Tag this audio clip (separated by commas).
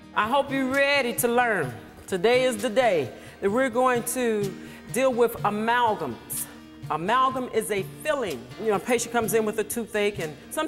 Music, Speech